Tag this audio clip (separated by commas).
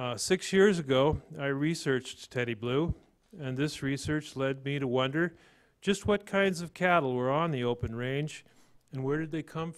Speech